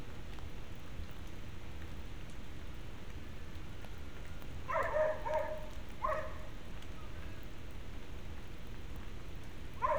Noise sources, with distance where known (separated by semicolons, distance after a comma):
dog barking or whining